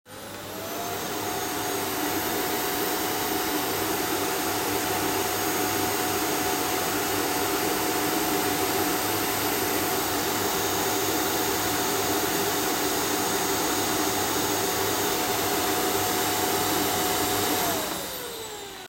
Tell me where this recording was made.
kitchen